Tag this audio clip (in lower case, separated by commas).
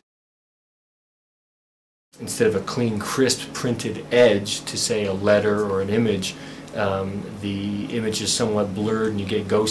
speech